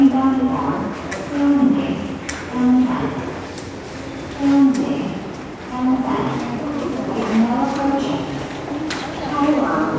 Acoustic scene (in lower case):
subway station